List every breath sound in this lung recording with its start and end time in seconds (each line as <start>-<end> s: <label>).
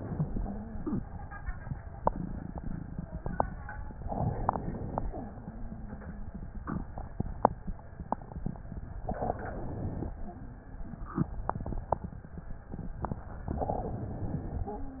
4.02-5.20 s: inhalation
9.09-10.19 s: inhalation
13.55-14.76 s: inhalation